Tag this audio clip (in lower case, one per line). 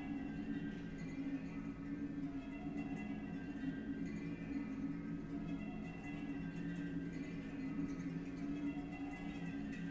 classical music